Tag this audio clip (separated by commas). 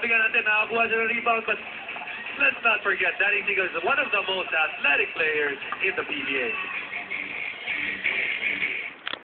Speech